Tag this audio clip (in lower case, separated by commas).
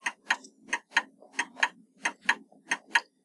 mechanisms, clock